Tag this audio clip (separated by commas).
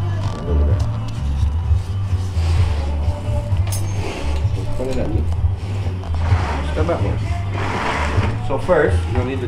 Speech, Music